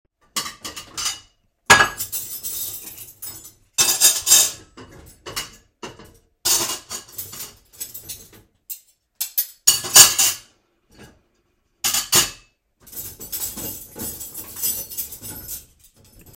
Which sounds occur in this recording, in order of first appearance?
cutlery and dishes